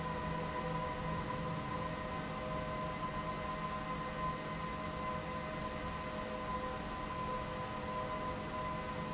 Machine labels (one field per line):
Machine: fan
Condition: abnormal